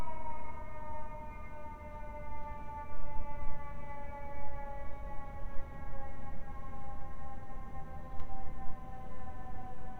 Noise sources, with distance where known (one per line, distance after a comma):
background noise